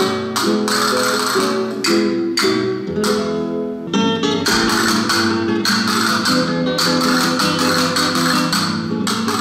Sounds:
playing castanets

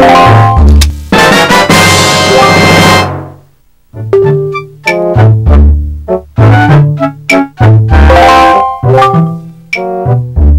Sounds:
music

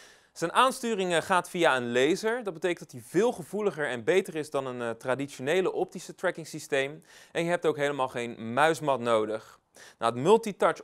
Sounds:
speech

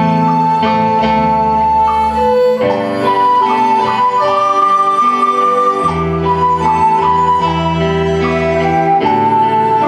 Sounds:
music, violin, musical instrument

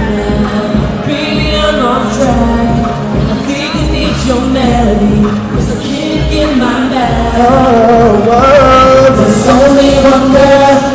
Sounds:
music, musical instrument

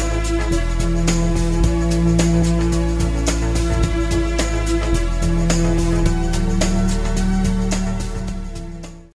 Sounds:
music

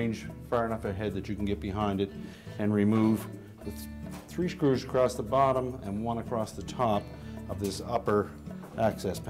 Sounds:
speech, music

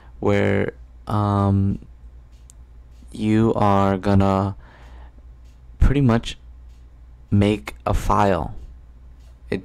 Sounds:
speech

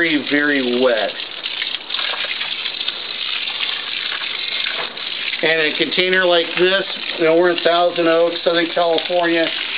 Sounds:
speech

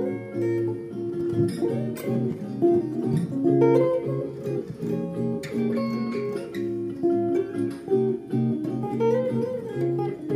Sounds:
musical instrument, music, guitar

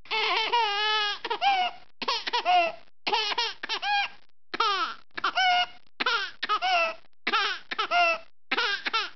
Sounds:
people sobbing, crying

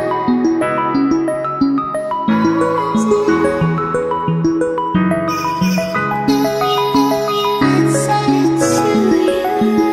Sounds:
music, new-age music

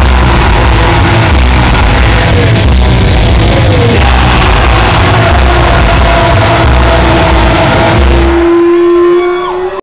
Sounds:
music

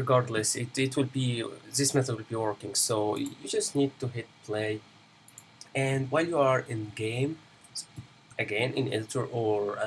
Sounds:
speech

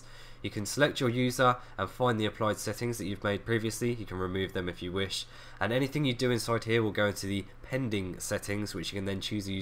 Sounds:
speech

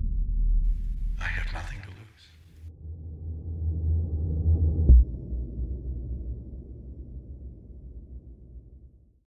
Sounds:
speech

